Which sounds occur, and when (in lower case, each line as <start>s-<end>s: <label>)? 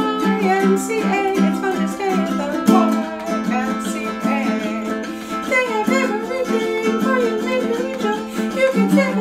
0.0s-5.0s: female singing
0.0s-9.2s: music
5.0s-5.4s: breathing
5.4s-8.3s: female singing
8.3s-8.4s: breathing
8.5s-9.2s: female singing